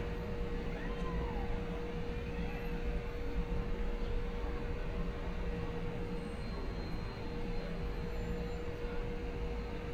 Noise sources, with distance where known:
person or small group shouting, far

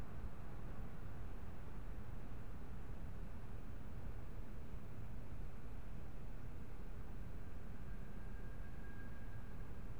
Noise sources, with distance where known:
background noise

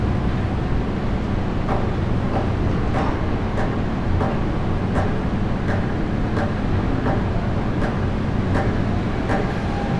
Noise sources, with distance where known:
unidentified impact machinery, near

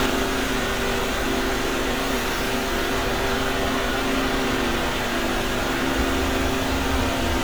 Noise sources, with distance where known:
engine of unclear size, near

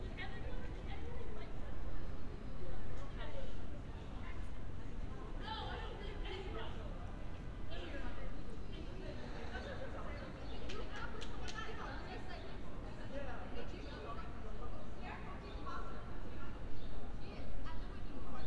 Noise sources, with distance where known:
person or small group talking, far

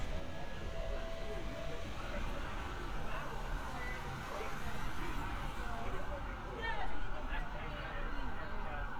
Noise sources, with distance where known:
siren, far
music from an unclear source, far
person or small group talking, near

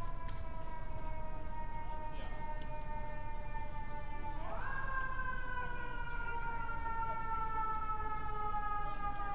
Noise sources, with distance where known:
siren, far

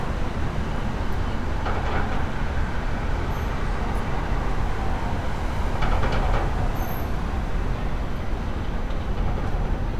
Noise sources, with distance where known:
unidentified impact machinery

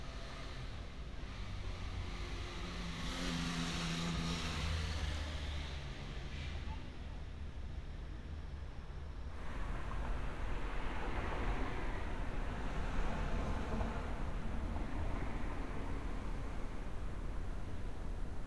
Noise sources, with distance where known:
engine of unclear size

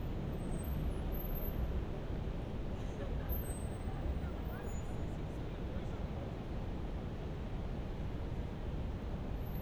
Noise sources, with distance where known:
unidentified human voice, far

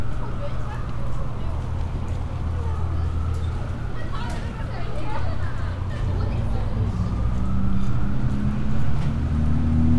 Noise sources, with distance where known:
person or small group talking, near

